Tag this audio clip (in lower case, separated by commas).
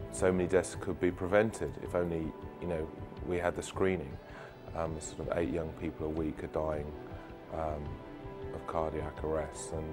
music, speech